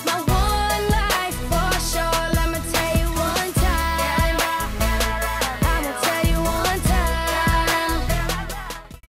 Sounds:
Music

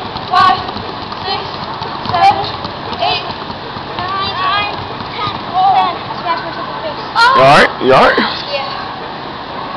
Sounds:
Speech, Tap

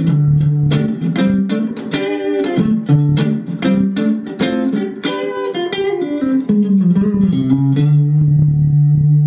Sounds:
Guitar, Plucked string instrument, Musical instrument, Bass guitar, Music

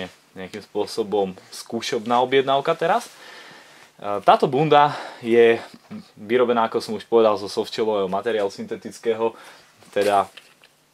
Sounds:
Speech

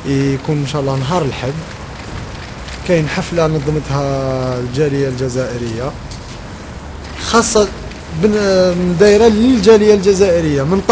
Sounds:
Speech

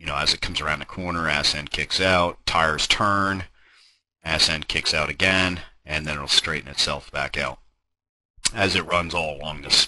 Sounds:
Speech

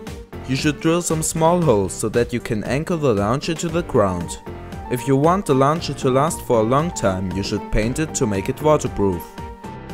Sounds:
Music, Speech

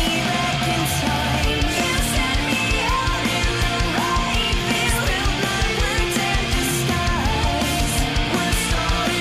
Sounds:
Music

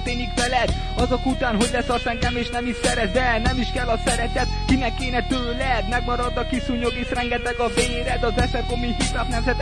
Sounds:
Hip hop music, Music

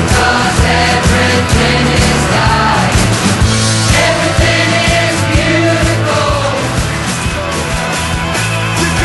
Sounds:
Music

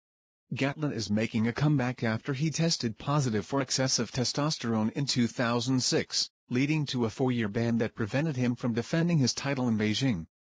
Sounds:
Speech

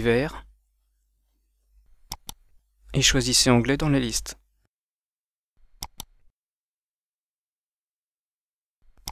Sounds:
Speech

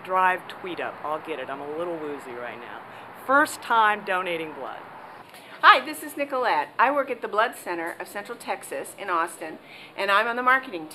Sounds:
Speech

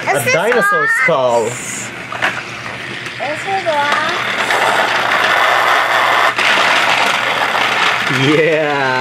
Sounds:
kid speaking, Train

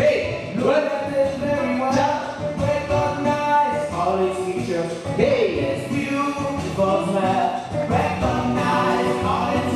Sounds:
Salsa music, Music

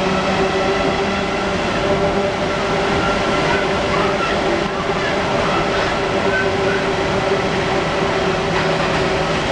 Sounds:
Vehicle, Subway, Speech

